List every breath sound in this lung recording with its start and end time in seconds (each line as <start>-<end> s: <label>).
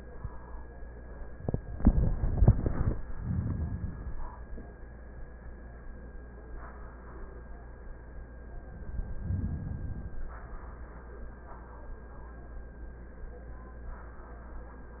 2.99-4.38 s: inhalation
8.72-10.42 s: inhalation